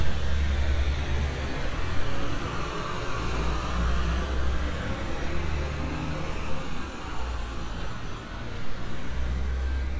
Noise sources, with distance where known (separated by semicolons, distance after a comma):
large-sounding engine, near